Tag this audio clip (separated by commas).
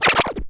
Scratching (performance technique), Musical instrument, Music